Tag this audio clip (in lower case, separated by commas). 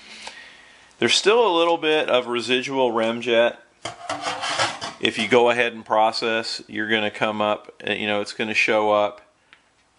speech